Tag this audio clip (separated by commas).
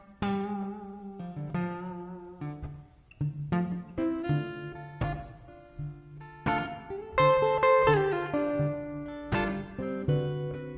Music